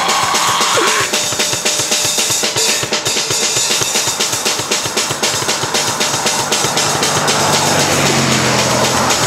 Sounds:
Music

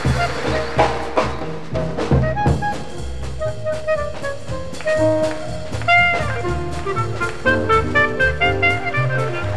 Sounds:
playing clarinet

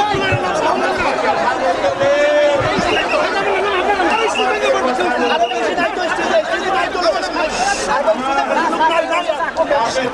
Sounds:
Speech, Conversation, monologue, Male speech

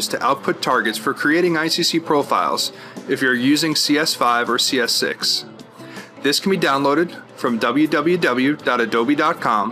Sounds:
Music, Speech

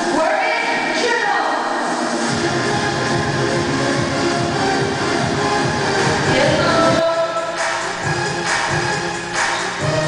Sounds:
Speech, Music

